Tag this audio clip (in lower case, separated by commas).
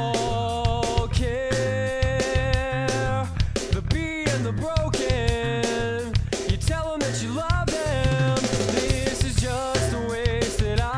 music